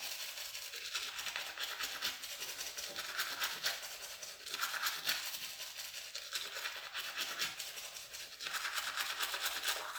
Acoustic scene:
restroom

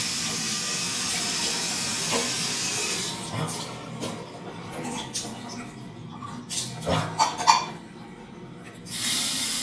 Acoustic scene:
restroom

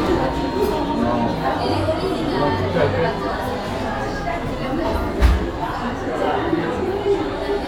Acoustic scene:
cafe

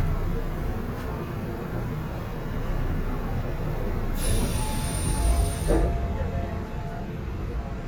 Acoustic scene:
subway train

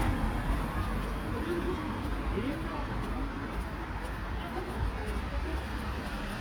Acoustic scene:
residential area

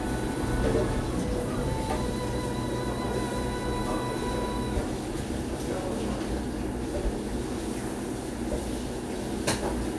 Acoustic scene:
cafe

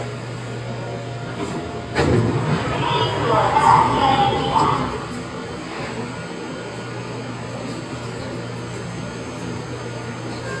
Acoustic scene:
subway train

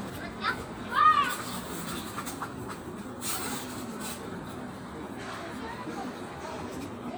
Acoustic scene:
park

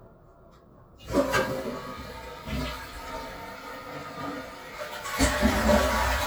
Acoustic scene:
restroom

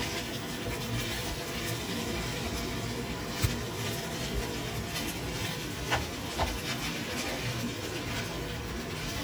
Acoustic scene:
kitchen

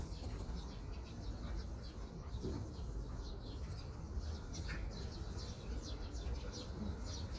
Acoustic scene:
park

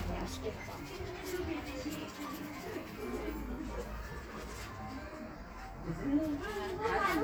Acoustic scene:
crowded indoor space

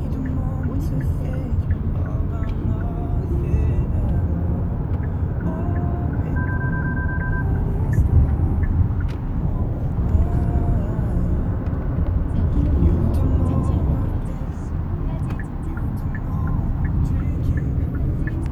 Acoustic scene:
car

